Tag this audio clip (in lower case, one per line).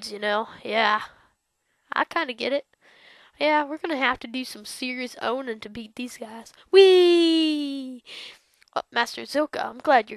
speech